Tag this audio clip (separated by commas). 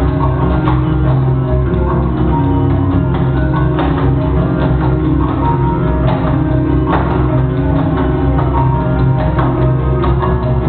Tap, Music